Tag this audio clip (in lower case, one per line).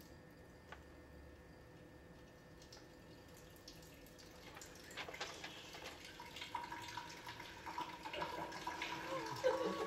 drip